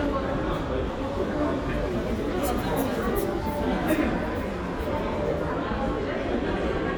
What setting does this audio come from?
crowded indoor space